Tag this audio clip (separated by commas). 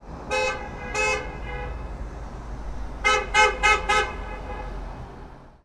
Alarm, Vehicle, Motor vehicle (road), roadway noise, Vehicle horn, Car